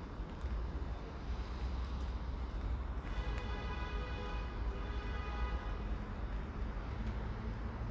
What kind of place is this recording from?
residential area